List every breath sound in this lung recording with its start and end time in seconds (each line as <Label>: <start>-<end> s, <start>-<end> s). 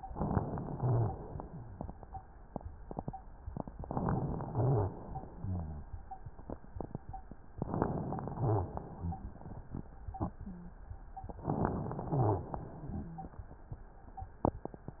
Inhalation: 3.80-4.46 s, 7.62-8.34 s, 11.42-12.08 s
Exhalation: 0.70-1.52 s, 4.46-4.94 s, 8.36-8.84 s, 12.06-12.61 s
Wheeze: 12.91-13.37 s